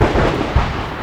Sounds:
thunder, thunderstorm

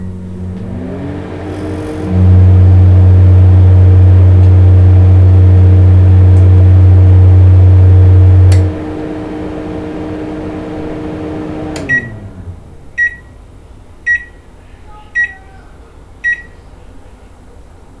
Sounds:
home sounds, microwave oven

